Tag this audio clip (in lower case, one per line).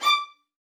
musical instrument
bowed string instrument
music